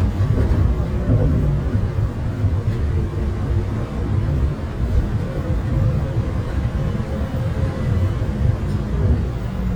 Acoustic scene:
bus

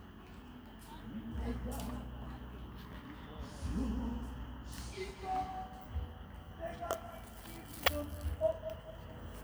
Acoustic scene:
park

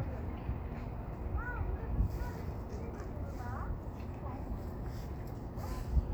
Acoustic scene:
street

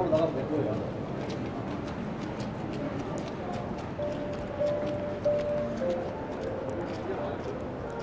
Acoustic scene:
crowded indoor space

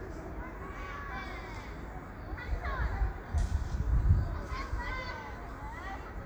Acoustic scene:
park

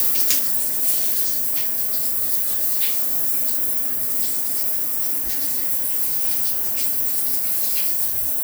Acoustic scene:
restroom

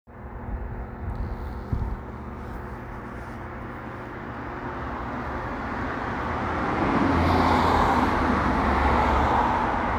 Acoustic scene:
street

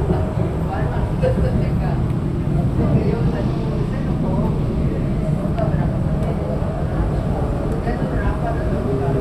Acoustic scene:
subway train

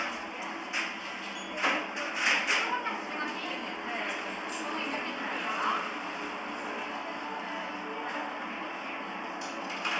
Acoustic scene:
cafe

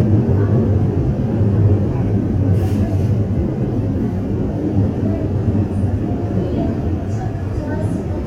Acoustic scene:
subway train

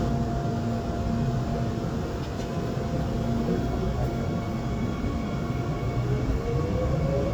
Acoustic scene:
subway train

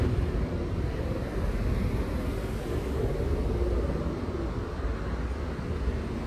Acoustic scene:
street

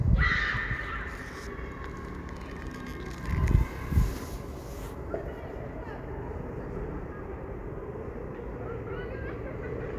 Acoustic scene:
residential area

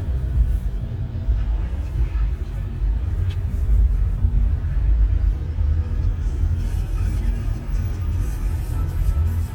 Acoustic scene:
car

